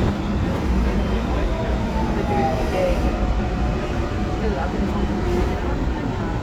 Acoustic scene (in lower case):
subway train